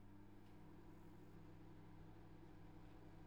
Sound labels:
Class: microwave oven